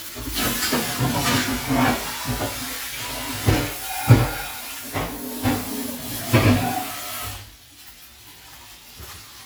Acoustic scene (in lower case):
kitchen